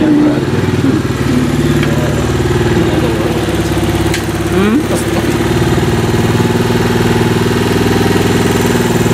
A motorcycle engine and a person speaking